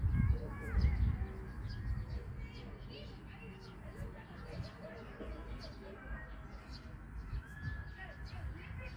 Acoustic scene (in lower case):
park